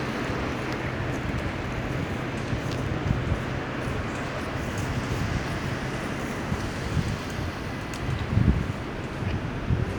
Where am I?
on a street